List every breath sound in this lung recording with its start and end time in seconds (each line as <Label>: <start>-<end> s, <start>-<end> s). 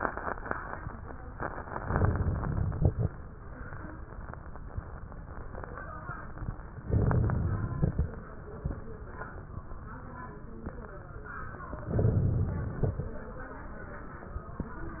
Inhalation: 1.80-3.00 s, 6.87-8.06 s, 11.90-13.09 s
Crackles: 1.80-3.00 s, 6.87-8.06 s, 11.90-13.09 s